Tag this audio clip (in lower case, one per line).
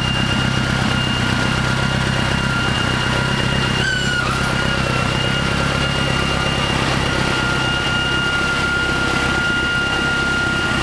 vehicle
truck